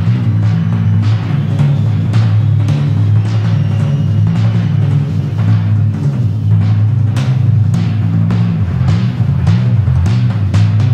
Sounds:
playing timpani

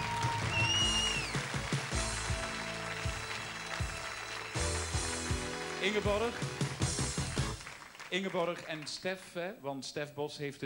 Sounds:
speech, music

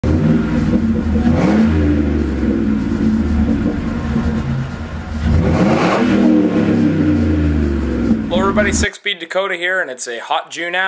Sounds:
vehicle, speech

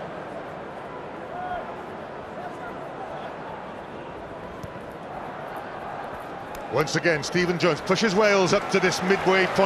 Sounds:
speech

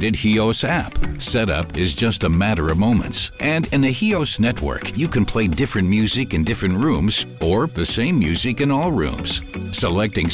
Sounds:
music, speech

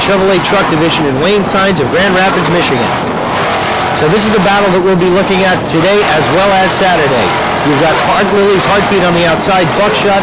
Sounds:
speech

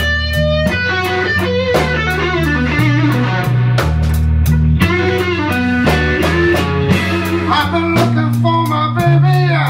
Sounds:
music, blues, rhythm and blues

